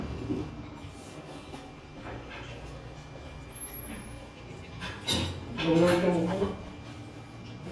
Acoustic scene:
restaurant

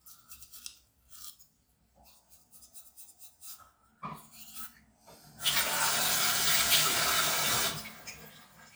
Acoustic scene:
restroom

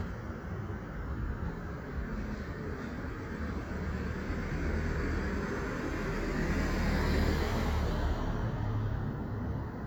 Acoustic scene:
residential area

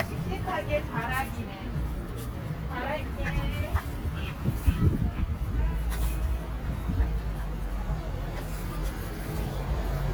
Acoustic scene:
residential area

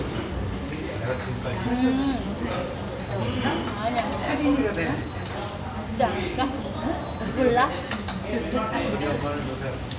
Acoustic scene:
restaurant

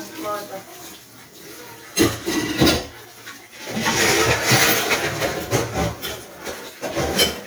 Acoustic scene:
kitchen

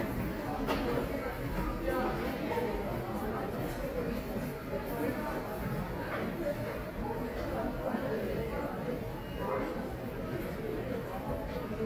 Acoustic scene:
subway station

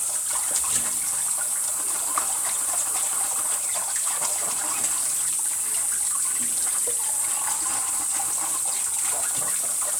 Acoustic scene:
kitchen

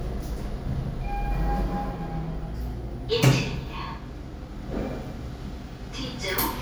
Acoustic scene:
elevator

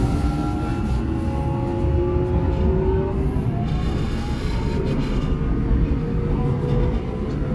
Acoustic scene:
subway train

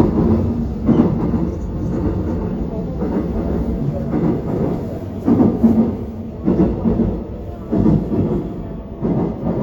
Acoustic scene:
subway train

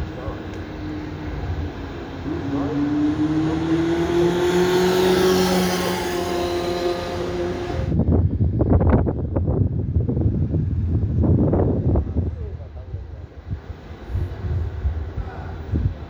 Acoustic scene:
street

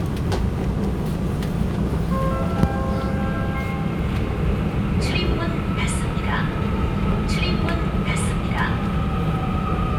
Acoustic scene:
subway train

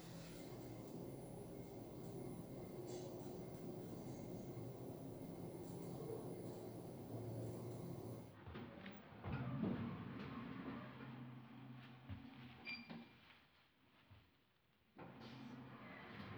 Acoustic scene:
elevator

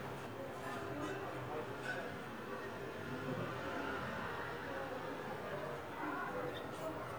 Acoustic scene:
residential area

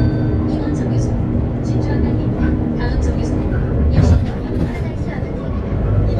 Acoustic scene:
bus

